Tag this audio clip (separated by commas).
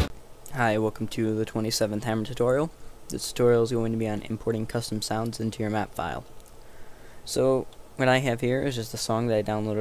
Speech